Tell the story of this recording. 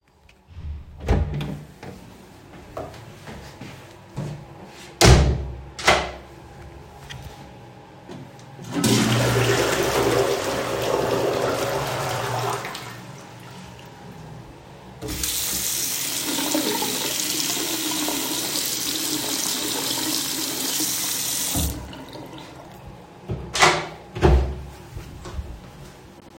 I walked into the bathroom and closed the door behind me. I then turned on the sink faucet and let the water run.